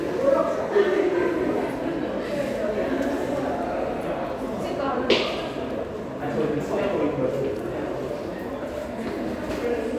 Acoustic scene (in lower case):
subway station